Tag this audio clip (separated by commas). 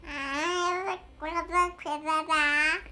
Human voice, Speech